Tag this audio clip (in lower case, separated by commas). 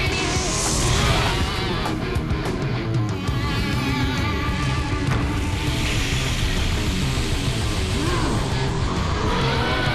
guitar, plucked string instrument, electric guitar, music